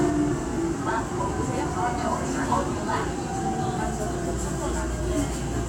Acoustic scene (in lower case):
subway train